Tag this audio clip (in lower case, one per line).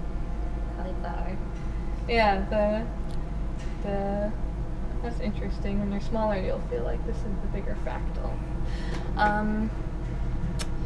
speech